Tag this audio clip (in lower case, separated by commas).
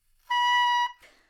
music, musical instrument, woodwind instrument